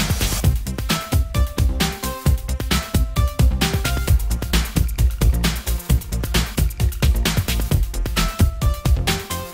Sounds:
music

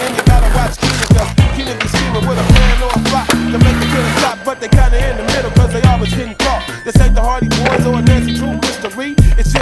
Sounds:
skateboard

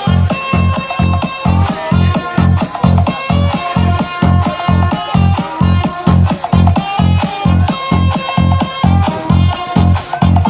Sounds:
speech, music

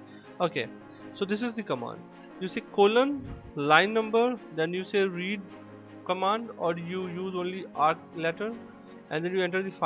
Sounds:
music, speech

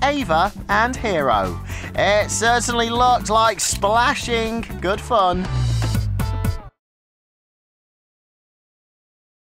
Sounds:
speech, music

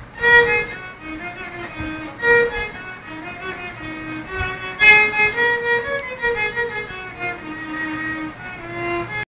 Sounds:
musical instrument, music, violin

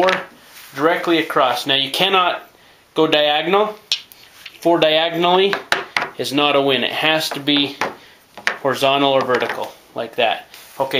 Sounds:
speech

